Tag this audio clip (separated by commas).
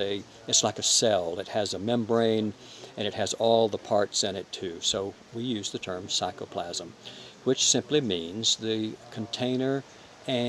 Speech